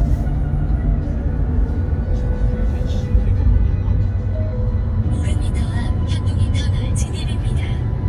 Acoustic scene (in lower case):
car